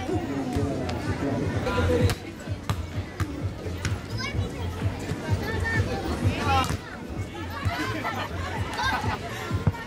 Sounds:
playing volleyball

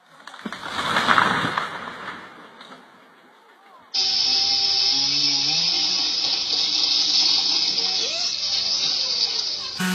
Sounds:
chainsawing trees

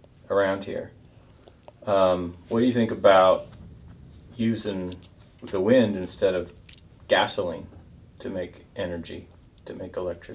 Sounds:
speech

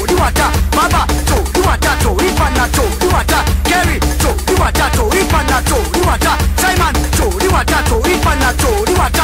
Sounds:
music

